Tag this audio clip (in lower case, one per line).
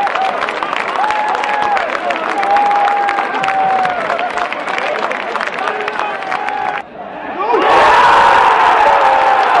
speech